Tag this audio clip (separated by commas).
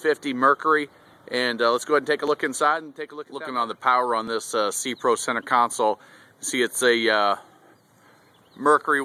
Speech